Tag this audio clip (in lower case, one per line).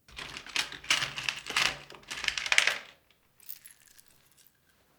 tools